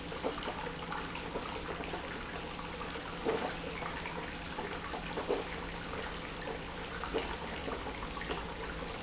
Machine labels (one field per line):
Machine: pump